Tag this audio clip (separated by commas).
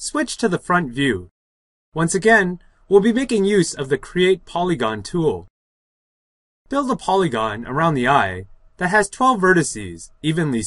Speech, inside a small room